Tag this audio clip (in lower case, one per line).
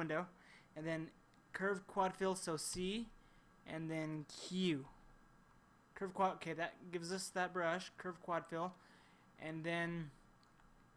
speech